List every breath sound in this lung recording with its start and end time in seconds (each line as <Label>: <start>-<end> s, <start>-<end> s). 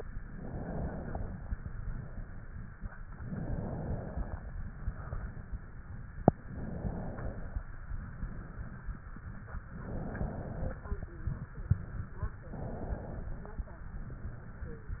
Inhalation: 0.22-1.39 s, 3.21-4.46 s, 6.44-7.69 s, 9.71-10.86 s, 12.42-13.56 s